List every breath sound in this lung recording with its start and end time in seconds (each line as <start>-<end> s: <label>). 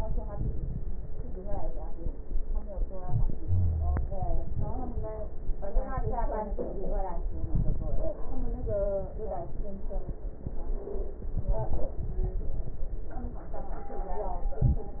3.41-4.05 s: wheeze
14.49-15.00 s: inhalation